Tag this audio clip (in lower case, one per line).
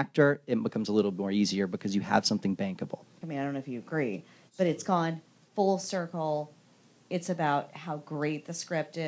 speech